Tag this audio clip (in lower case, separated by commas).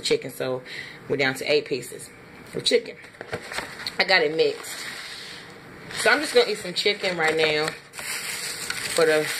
speech